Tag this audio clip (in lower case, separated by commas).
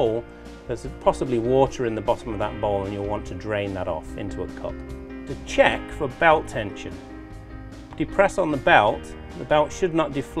speech, music